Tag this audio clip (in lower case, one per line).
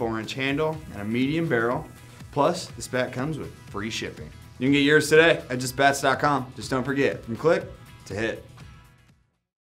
music
speech